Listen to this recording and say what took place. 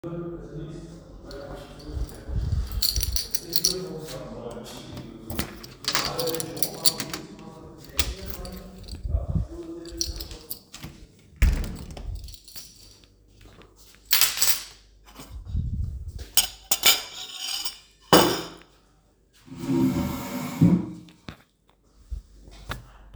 I walked down the hallway, inserted the key into the lock and turned it. I opened the door, got into the kitchen, and put my keychain on the countertop. Then I picked up my plate from the countertop, put it on the table and moved the chair to sit down.